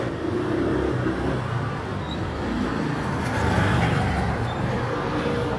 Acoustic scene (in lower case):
street